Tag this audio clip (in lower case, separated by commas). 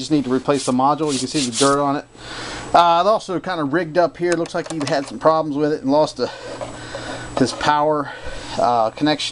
speech